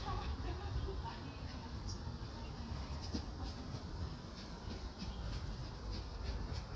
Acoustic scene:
park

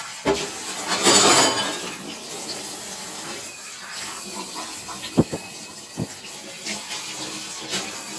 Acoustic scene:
kitchen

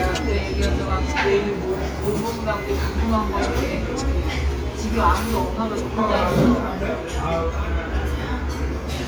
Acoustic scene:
restaurant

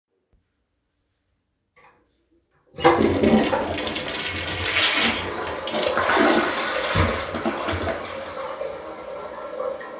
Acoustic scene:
restroom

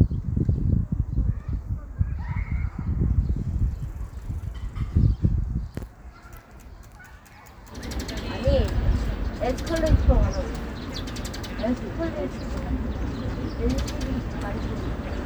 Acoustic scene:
park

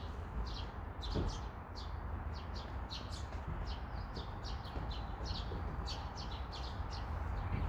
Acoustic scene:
park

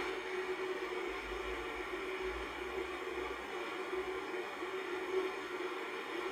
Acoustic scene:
car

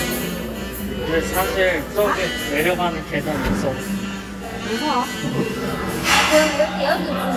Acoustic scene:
cafe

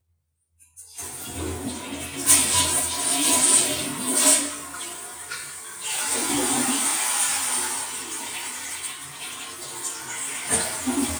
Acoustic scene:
restroom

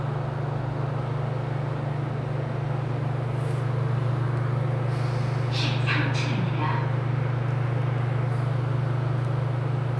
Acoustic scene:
elevator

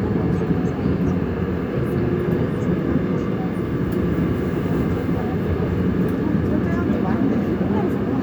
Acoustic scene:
subway train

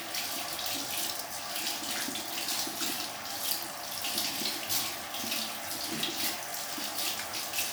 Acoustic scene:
restroom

